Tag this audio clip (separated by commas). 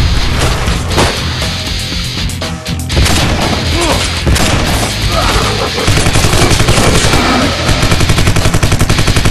Music, Boom